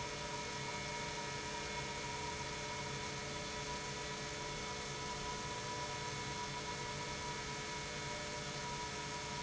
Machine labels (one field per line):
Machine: pump